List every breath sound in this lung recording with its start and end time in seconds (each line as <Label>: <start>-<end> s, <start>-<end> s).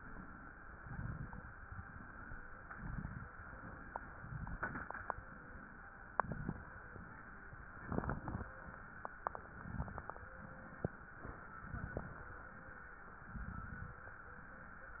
Inhalation: 0.81-1.64 s, 2.59-3.37 s, 4.19-5.12 s, 6.11-6.91 s, 7.83-8.61 s, 9.48-10.30 s, 11.53-12.34 s, 13.27-14.08 s
Exhalation: 0.01-0.76 s, 1.64-2.42 s, 3.42-4.19 s, 5.12-6.09 s, 6.94-7.87 s, 8.54-9.45 s, 10.32-11.14 s
Crackles: 0.80-1.61 s, 2.56-3.35 s, 4.20-5.15 s, 6.15-6.95 s, 7.83-8.61 s, 9.48-10.30 s, 11.53-12.34 s, 13.27-14.08 s